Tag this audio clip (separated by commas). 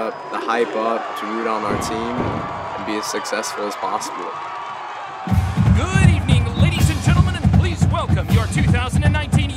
people marching